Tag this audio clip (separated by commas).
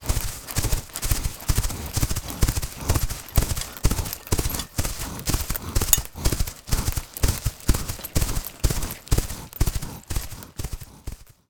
Animal, livestock